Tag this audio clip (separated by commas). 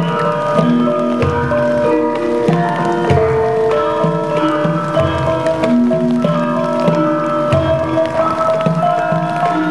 Dance music, Music